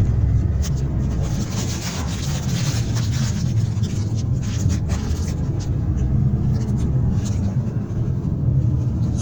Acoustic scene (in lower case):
car